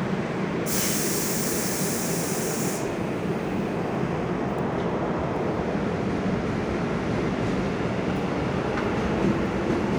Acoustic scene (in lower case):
subway station